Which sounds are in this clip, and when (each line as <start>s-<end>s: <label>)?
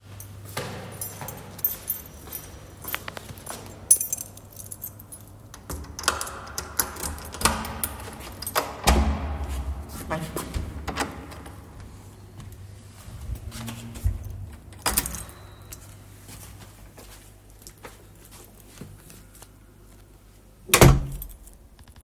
0.2s-9.2s: keys
0.4s-3.8s: footsteps
6.0s-11.7s: door
13.1s-14.7s: footsteps
14.8s-15.4s: keys
16.2s-19.5s: footsteps
20.7s-21.4s: door